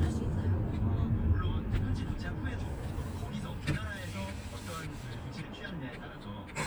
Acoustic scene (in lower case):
car